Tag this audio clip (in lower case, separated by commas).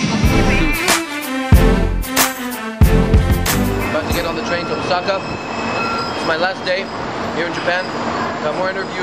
speech, inside a public space, music, rail transport, train wheels squealing